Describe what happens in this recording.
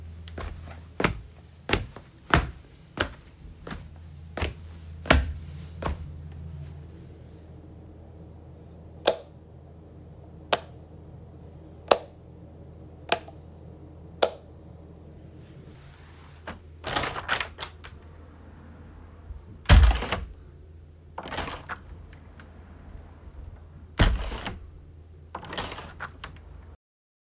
I entered a room, turn on the lights and opend a window.